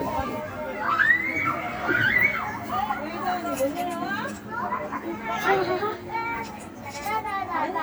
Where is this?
in a residential area